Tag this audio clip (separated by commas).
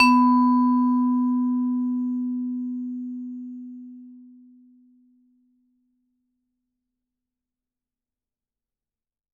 Musical instrument, Mallet percussion, Percussion, Music